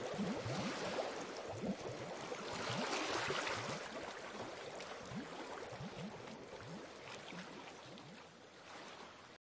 Water gurgling noise like low tide waves